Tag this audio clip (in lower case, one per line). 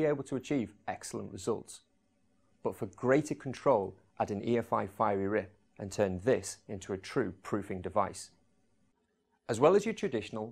speech